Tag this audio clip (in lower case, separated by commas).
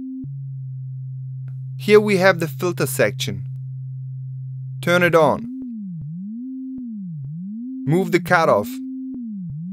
sampler, speech